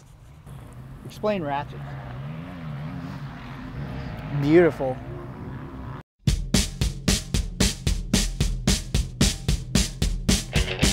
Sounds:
Vehicle

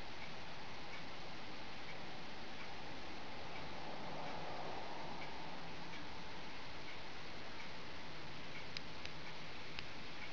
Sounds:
Tick, Tick-tock

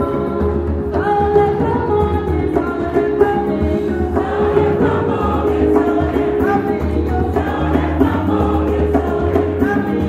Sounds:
Music

